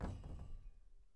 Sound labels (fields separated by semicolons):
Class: cupboard; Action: closing; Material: wooden